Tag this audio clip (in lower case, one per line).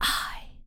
whispering
human voice